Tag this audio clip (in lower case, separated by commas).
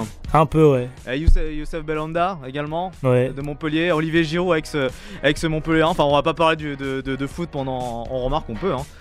speech, music